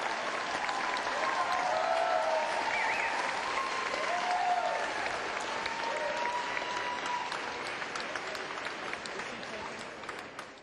A crowd applauds and cheers